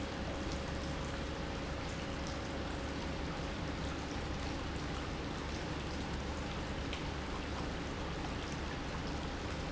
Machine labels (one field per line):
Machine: pump